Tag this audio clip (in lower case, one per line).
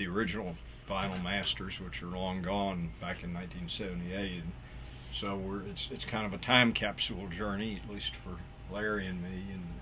speech